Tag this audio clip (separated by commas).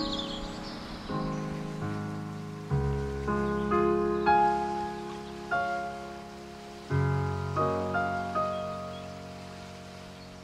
Music